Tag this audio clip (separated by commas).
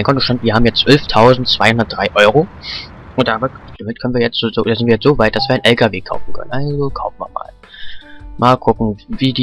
Music, Speech